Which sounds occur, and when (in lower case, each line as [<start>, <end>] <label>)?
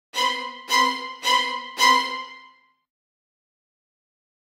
[0.13, 2.90] music